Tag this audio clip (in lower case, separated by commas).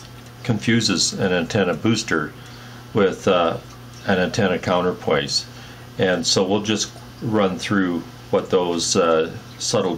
speech